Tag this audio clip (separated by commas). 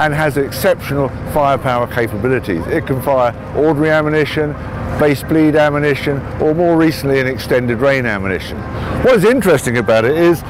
Speech, outside, urban or man-made